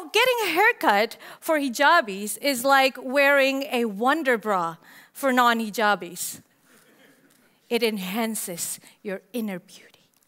A woman giving a speech